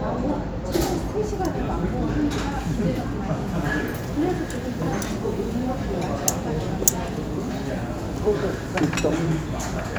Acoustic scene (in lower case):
restaurant